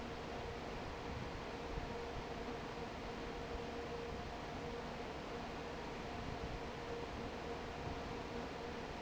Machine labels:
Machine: fan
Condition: normal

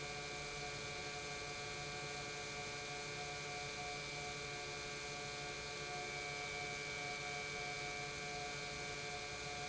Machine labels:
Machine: pump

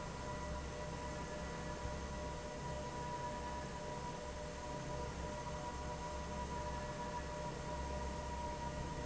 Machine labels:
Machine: fan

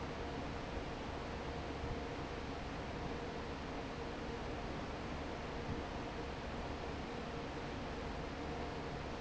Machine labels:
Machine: fan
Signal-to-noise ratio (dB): 0 dB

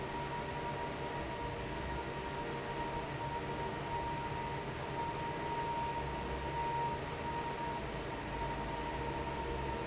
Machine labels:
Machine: fan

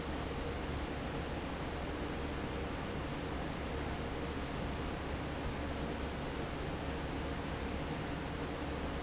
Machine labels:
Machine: fan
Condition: normal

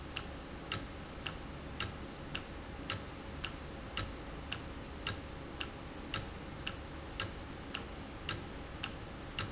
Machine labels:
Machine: valve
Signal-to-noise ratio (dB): 0 dB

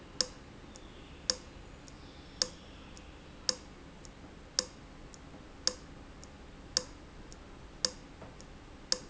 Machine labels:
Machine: valve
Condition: abnormal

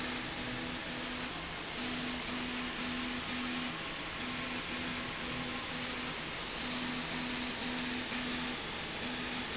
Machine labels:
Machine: slide rail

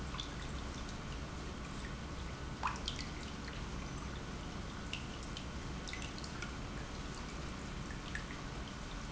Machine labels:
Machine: pump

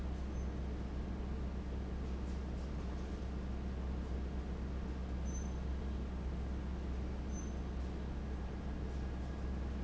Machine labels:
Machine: fan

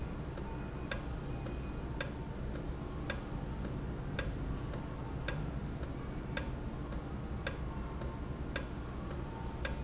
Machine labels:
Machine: valve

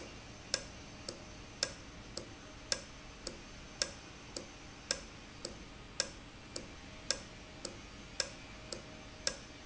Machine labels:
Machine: valve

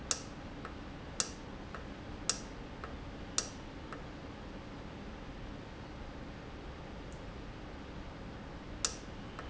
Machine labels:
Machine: valve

